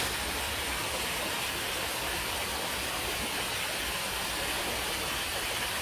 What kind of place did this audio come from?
park